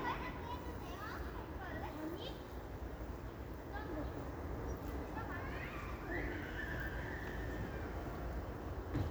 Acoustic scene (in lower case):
residential area